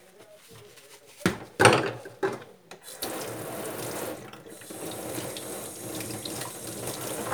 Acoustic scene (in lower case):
kitchen